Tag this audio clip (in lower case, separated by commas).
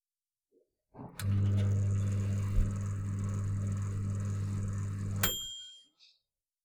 home sounds, microwave oven